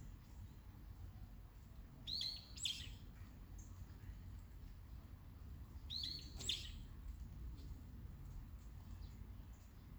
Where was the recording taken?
in a park